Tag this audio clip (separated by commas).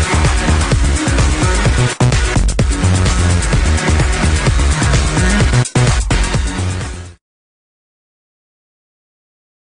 Electronic music, Music, Dubstep